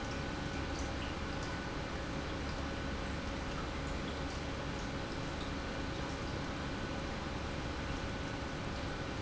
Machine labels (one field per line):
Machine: pump